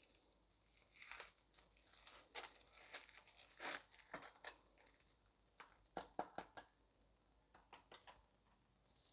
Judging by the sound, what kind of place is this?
kitchen